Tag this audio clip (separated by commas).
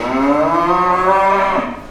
Animal, livestock